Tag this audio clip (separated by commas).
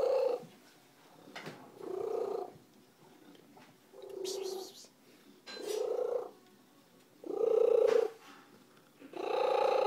pets, Caterwaul, cat purring, Cat, Animal, Purr